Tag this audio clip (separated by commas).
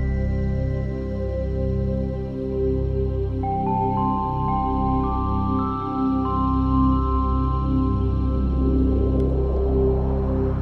Music, New-age music